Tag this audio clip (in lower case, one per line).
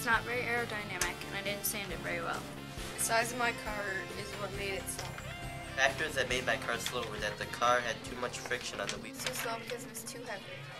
speech